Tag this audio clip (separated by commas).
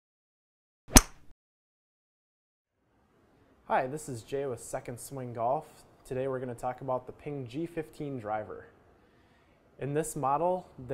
Speech